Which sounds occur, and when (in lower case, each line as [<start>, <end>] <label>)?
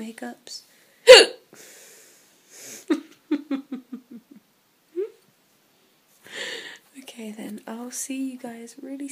[0.00, 0.32] surface contact
[0.00, 0.61] female speech
[0.00, 9.11] background noise
[0.61, 0.94] surface contact
[1.00, 1.40] hiccup
[1.50, 2.20] breathing
[2.43, 2.83] sniff
[2.85, 4.39] laughter
[4.87, 5.11] human voice
[6.20, 6.79] breathing
[6.86, 9.11] female speech